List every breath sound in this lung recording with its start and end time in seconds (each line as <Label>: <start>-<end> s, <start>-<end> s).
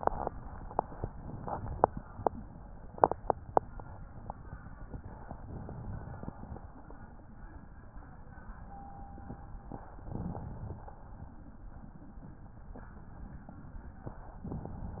Inhalation: 1.12-2.00 s, 5.42-6.59 s, 10.14-10.90 s, 14.47-15.00 s